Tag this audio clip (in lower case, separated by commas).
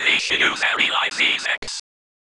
human voice, whispering